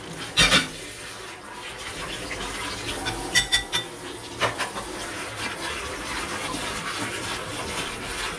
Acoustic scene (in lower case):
kitchen